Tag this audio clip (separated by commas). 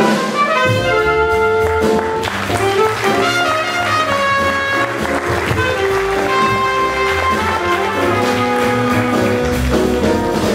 Drum kit, Saxophone, Trumpet, Music, Jazz, Drum, Piano, Musical instrument, Orchestra